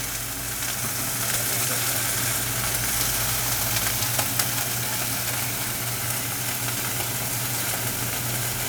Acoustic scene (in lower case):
kitchen